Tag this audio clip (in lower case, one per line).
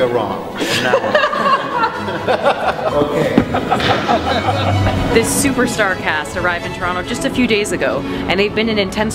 music
speech
classical music